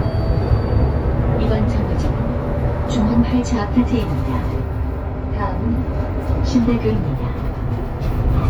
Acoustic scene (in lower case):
bus